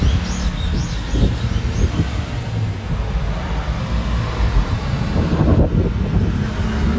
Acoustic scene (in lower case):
street